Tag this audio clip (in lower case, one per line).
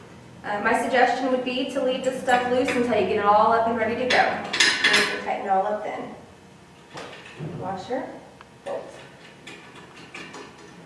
speech